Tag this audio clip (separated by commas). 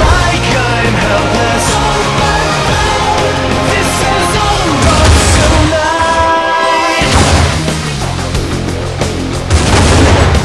inside a large room or hall, Music